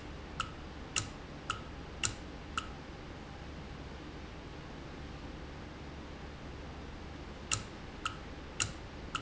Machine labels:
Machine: valve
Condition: normal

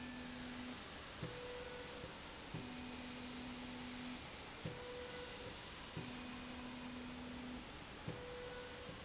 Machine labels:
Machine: slide rail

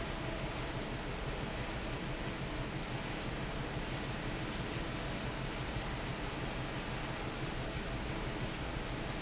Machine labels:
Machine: fan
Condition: normal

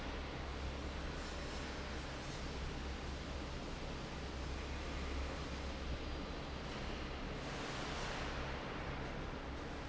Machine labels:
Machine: fan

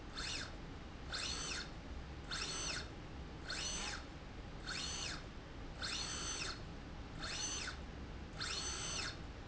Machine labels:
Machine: slide rail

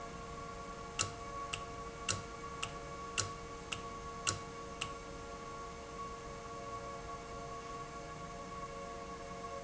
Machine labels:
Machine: valve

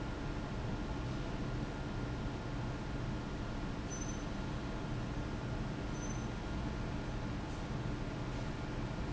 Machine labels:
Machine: fan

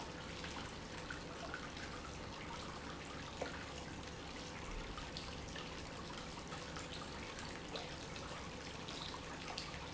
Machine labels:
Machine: pump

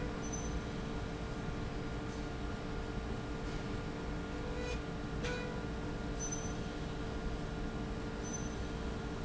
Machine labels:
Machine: slide rail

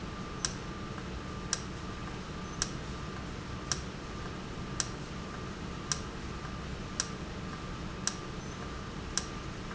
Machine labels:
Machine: valve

